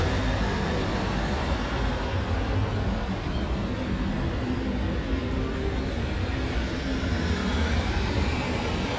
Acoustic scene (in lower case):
street